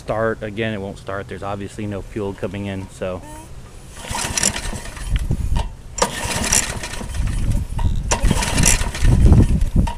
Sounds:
Lawn mower, Speech

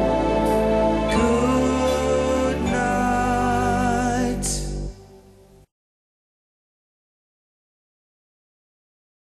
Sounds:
Music

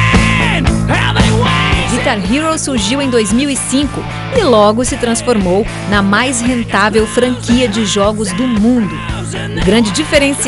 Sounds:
Musical instrument, Guitar, Music, Electric guitar, Speech, Strum, Plucked string instrument

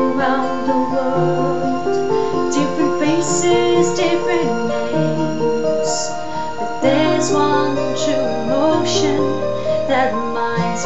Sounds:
Female singing, Music

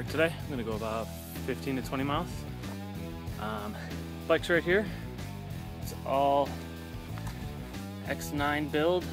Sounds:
Music, Speech

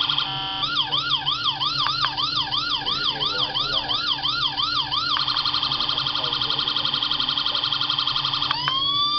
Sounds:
inside a small room, Police car (siren), Speech

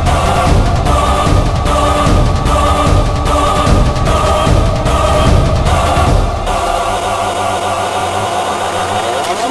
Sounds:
Music

